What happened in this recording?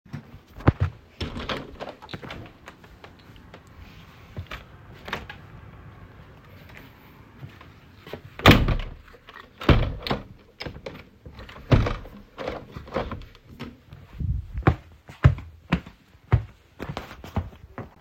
Window opened and closed followed by walking footsteps.